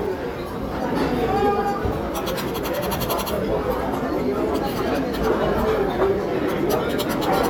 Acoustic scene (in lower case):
restaurant